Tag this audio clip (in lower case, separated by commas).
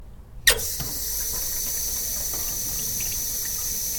domestic sounds, water tap, sink (filling or washing)